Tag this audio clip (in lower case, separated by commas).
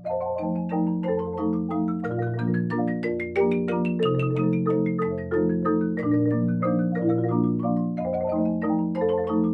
playing marimba